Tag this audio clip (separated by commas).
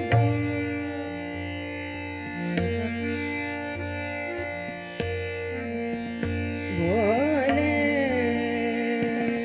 Carnatic music, Classical music, Music, Sitar, Singing